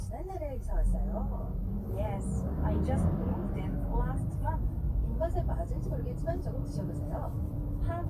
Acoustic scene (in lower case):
car